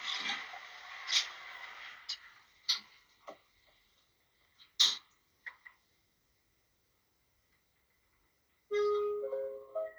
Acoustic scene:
elevator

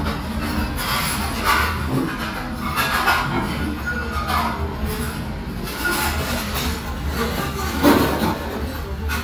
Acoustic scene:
restaurant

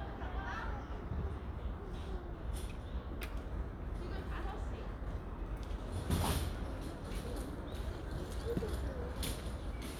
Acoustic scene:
residential area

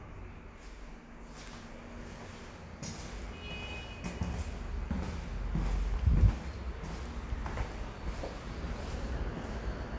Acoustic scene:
elevator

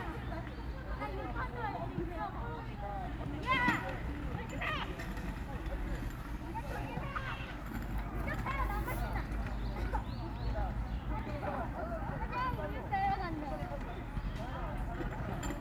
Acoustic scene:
park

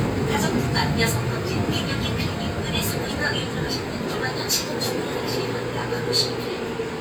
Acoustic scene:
subway train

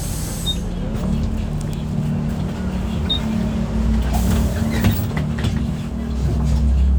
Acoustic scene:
bus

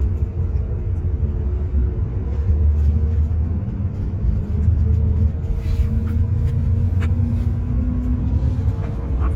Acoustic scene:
car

